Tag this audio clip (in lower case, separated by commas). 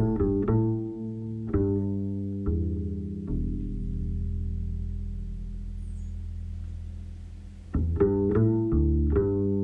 music